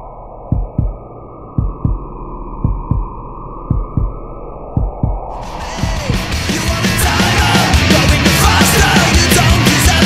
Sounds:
music, heart sounds

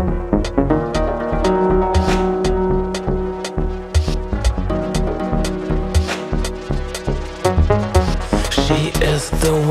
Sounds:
synthesizer

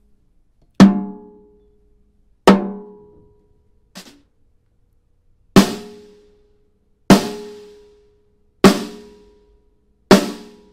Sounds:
snare drum, percussion, drum

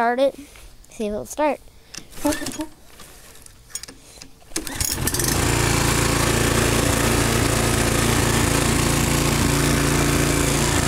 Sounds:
outside, urban or man-made, lawn mower, speech, lawn mowing

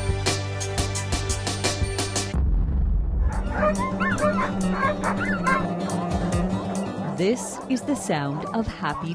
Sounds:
animal, music, speech, domestic animals, dog

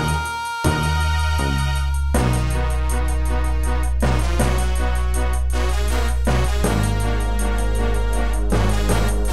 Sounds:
music, background music

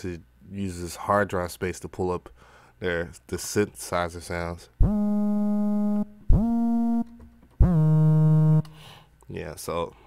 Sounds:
speech

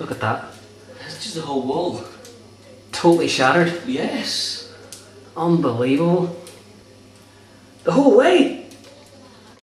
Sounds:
speech

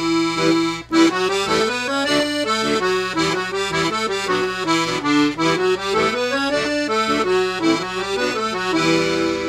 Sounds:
playing accordion

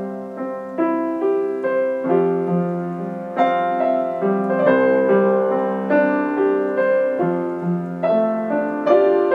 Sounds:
music

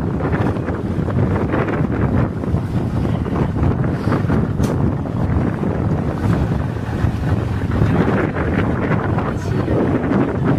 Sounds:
ocean

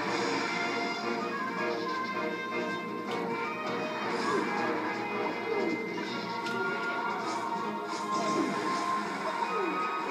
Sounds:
music

